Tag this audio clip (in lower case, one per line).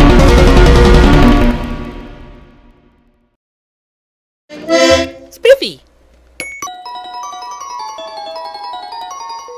speech
music